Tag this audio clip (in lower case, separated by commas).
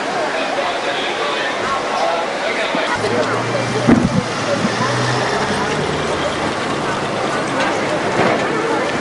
speech